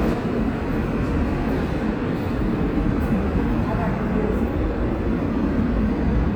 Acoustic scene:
subway station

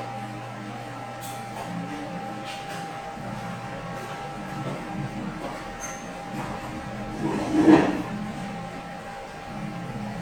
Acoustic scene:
cafe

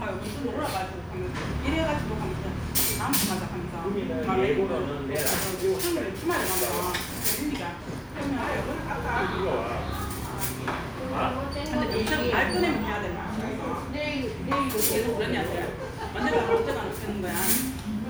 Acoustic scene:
restaurant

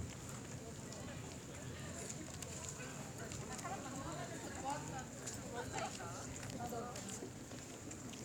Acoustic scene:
park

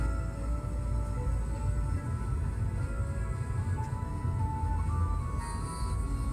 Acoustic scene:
car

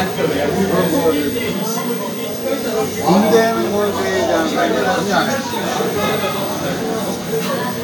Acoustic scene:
crowded indoor space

